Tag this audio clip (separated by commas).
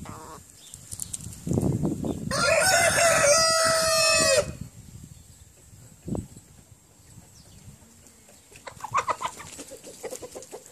rooster